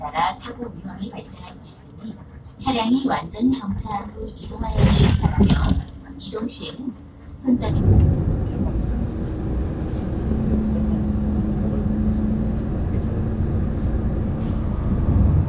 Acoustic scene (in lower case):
bus